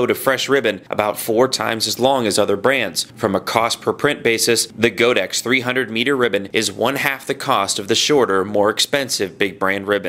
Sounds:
Speech

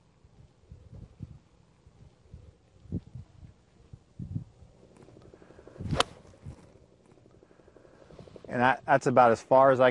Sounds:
Speech

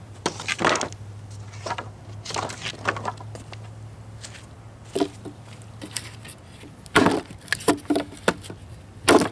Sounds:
Wood

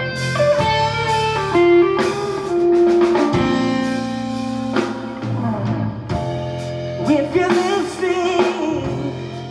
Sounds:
Music, Blues, Singing

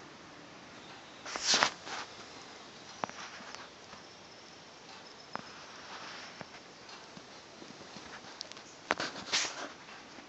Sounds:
Tick-tock

